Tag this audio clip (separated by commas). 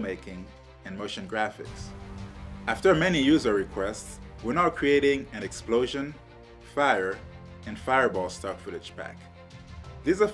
Music, Speech